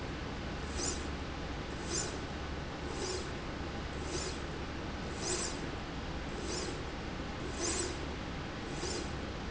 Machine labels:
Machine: slide rail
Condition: normal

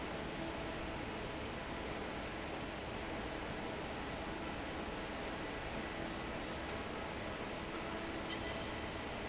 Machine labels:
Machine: fan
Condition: normal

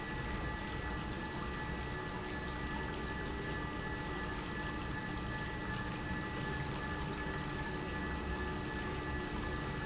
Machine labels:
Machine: pump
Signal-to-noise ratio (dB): -6 dB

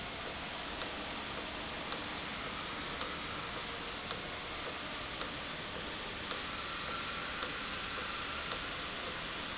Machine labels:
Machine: valve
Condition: normal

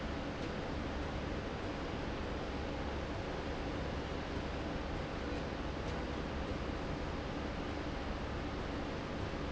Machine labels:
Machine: slide rail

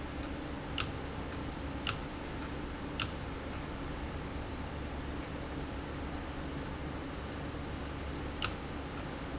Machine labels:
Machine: valve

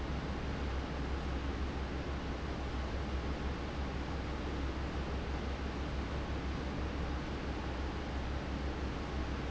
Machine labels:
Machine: fan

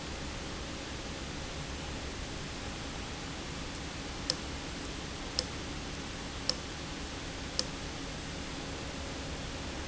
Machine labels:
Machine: valve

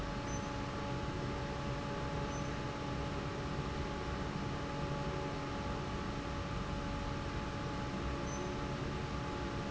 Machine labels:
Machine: fan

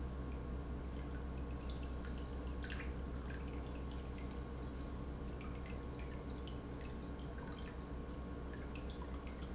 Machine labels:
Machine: pump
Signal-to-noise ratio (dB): 0 dB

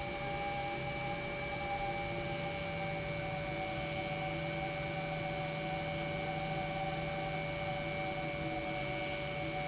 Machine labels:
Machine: pump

